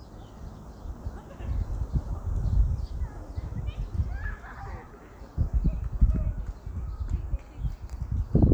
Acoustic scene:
park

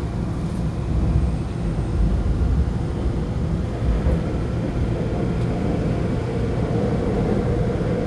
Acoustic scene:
subway train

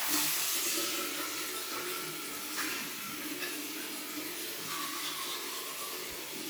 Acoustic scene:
restroom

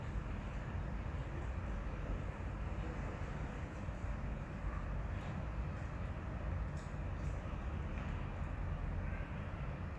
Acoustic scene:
residential area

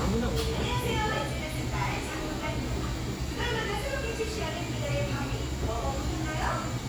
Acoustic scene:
cafe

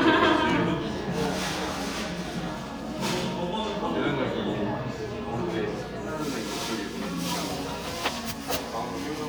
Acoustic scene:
crowded indoor space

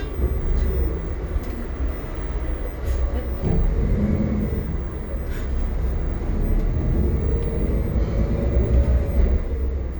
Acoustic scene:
bus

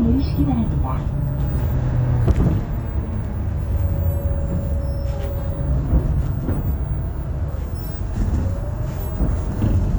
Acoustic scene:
bus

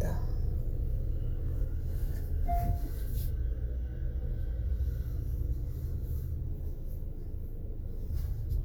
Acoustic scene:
car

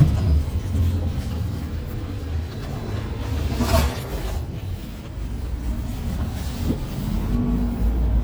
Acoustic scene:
bus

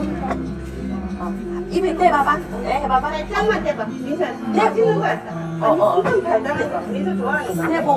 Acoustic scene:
restaurant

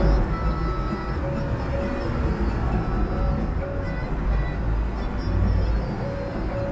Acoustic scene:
car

